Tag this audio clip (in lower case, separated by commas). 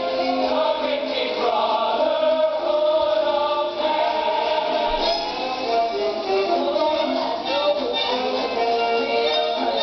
choir, music